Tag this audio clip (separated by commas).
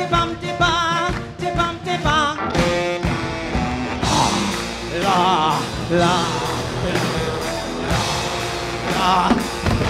Music